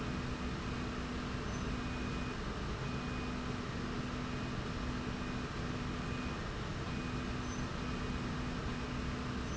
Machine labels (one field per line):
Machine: slide rail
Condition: normal